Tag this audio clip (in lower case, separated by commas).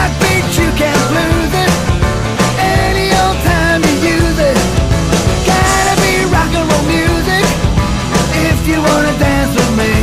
rock and roll, dance music, music